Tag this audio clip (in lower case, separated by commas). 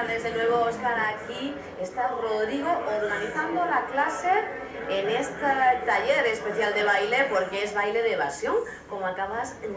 speech